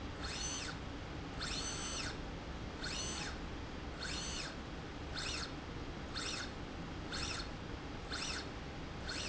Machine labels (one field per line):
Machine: slide rail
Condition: normal